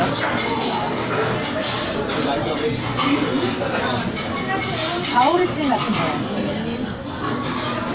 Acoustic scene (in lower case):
crowded indoor space